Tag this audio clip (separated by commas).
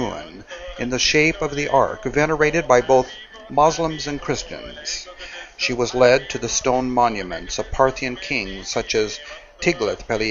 Speech